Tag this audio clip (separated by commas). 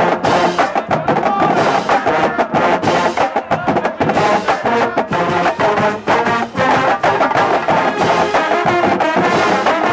Speech, Music